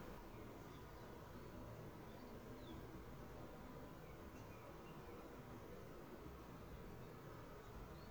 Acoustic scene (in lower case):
park